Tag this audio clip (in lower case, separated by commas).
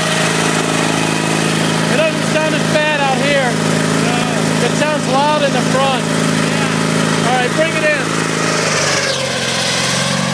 lawn mower, lawn mowing